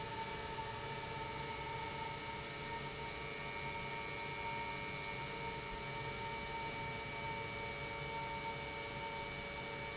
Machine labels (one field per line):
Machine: pump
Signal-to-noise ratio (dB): 0 dB